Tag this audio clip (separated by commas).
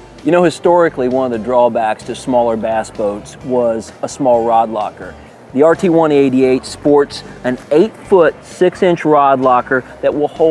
Speech, Music